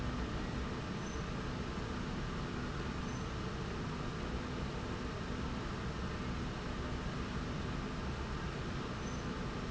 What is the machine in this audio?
slide rail